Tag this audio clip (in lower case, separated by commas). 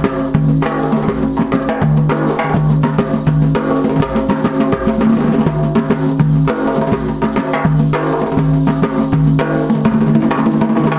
music